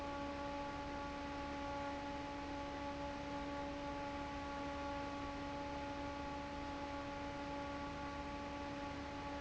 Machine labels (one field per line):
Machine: fan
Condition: normal